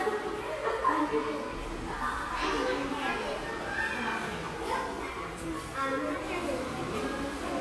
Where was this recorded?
in a crowded indoor space